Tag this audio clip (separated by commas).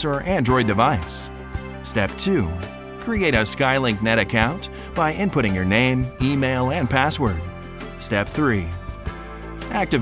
Music, Speech